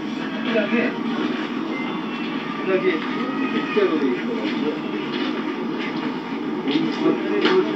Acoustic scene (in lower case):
park